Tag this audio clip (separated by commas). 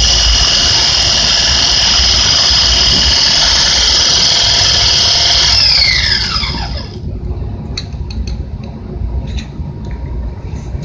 inside a small room